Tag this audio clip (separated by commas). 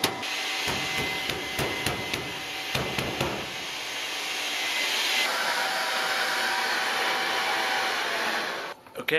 vacuum cleaner cleaning floors